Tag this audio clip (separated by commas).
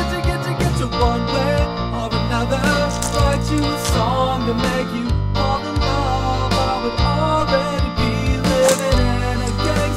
Music